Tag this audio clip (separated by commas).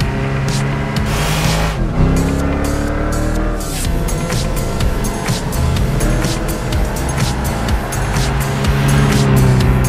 Music